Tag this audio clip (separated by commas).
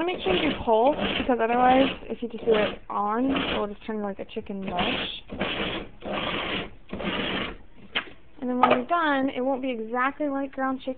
Speech